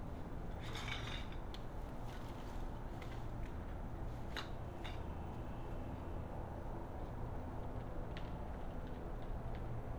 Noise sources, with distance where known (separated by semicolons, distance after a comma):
non-machinery impact, near